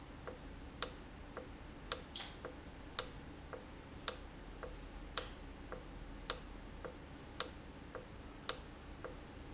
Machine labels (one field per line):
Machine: valve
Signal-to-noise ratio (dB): 6 dB